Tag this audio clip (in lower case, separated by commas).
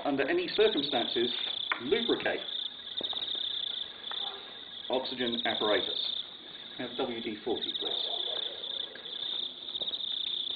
insect, cricket